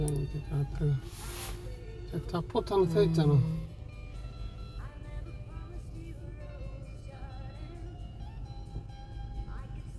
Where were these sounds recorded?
in a car